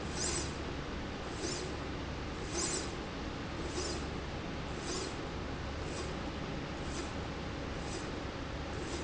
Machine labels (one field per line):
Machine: slide rail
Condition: normal